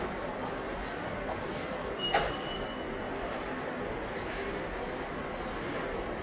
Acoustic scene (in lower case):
subway station